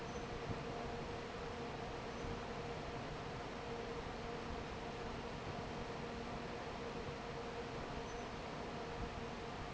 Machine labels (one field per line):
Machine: fan